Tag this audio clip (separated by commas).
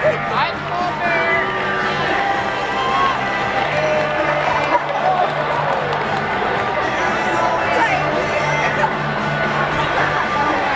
Speech, Music